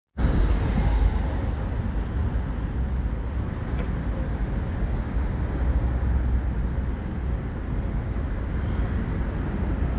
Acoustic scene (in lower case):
street